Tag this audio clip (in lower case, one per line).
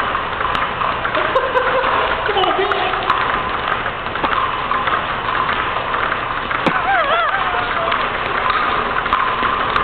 speech